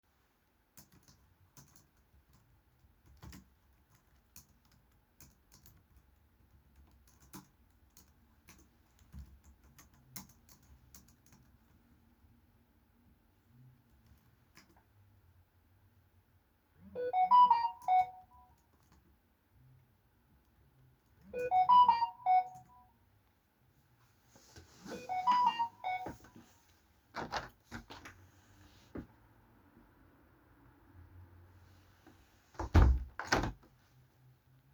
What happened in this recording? I was typing on the keyboard when I received a phone notification. I moved the chair back and stepped away from the desk. Then I walked to the window, opened it, looked outside, and closed it again.